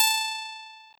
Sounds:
musical instrument
music
guitar
plucked string instrument

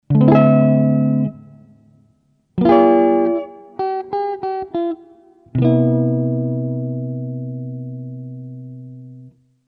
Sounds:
guitar
music
plucked string instrument
musical instrument

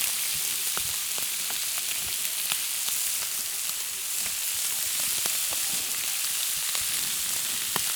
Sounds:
frying (food)
home sounds

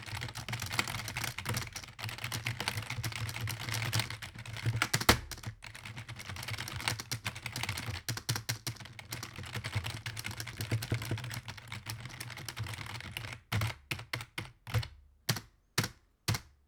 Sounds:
domestic sounds
computer keyboard
typing

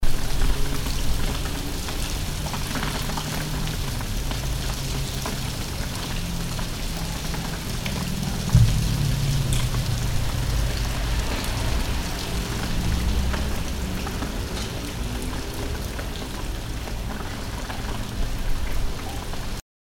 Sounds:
water
motor vehicle (road)
rain
vehicle

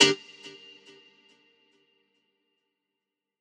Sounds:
plucked string instrument
musical instrument
guitar
music

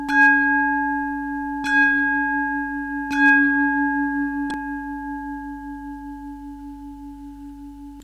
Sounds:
bell

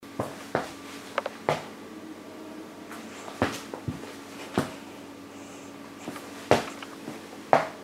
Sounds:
walk

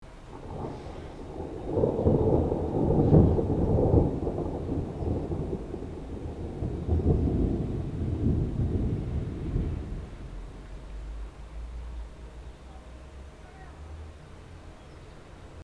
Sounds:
thunder
thunderstorm

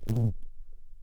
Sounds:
buzz
insect
wild animals
animal

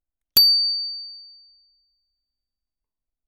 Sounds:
bicycle bell
vehicle
bell
bicycle
alarm

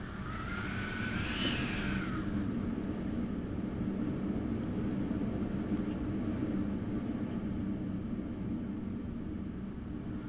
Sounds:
wind

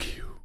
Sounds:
human voice
whispering

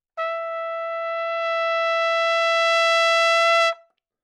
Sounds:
music
trumpet
brass instrument
musical instrument

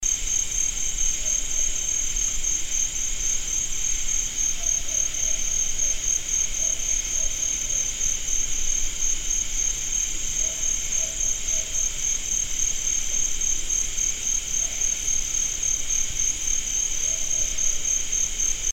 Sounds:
insect
animal
wild animals
cricket

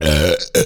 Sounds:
burping

